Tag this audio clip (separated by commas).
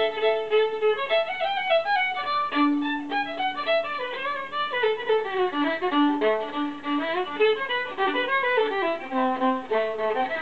Musical instrument, Violin, Music